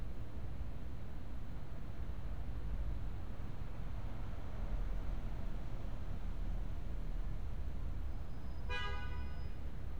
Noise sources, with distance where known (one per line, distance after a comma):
car horn, near